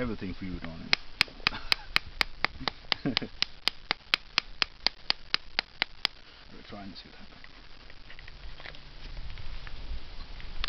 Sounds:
Speech

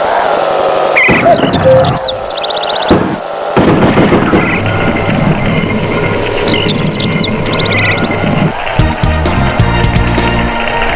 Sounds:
Music, inside a large room or hall

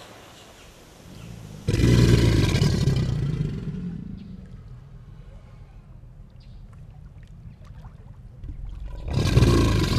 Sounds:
crocodiles hissing

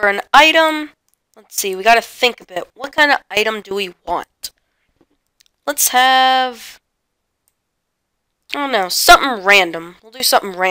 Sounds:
Speech

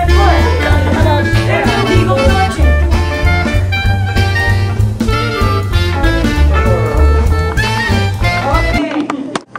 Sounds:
Music, Swing music, Speech

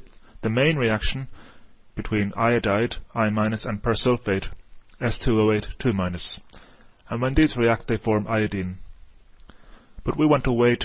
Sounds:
Speech

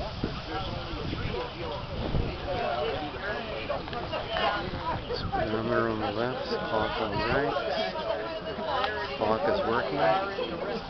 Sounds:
Speech, outside, urban or man-made

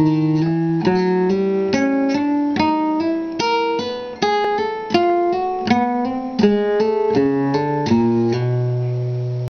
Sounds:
Music, Guitar, Acoustic guitar, Plucked string instrument, Musical instrument

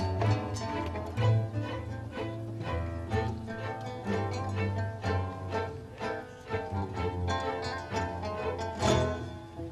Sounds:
Plucked string instrument, Music, Guitar, Strum, Musical instrument

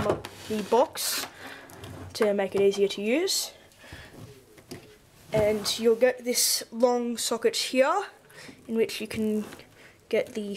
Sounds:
Speech

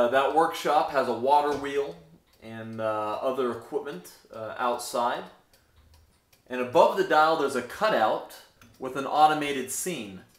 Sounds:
Tick-tock, Speech

